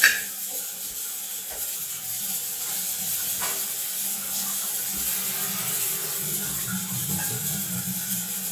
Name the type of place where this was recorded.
restroom